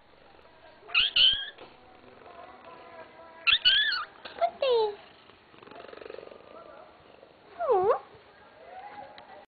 A cat meowing then purring as a young girl speaks